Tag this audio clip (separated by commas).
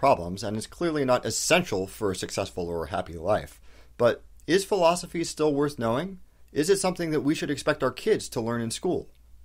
Speech, monologue